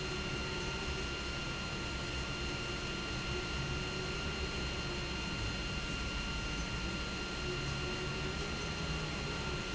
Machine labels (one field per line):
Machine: pump